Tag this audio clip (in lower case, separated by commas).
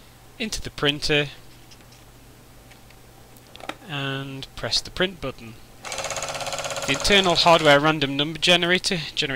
speech, printer